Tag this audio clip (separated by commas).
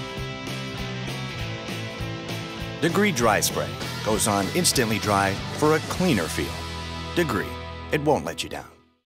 Speech, Music